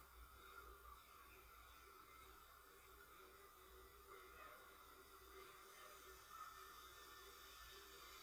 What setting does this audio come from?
residential area